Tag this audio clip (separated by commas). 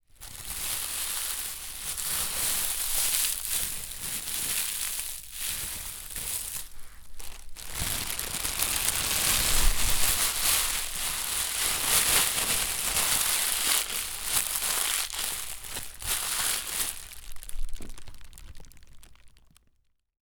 crinkling